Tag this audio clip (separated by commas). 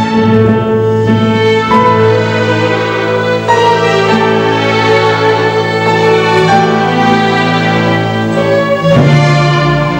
Musical instrument, Violin, Orchestra, Music